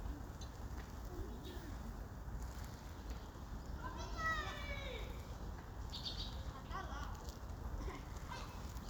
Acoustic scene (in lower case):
park